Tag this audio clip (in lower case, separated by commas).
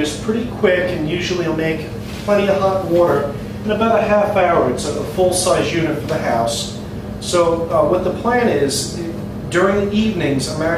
speech